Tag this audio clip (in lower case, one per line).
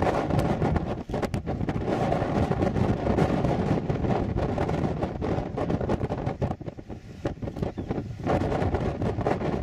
tornado roaring